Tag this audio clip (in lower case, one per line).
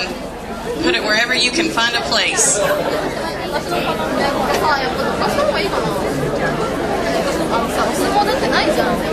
speech
female speech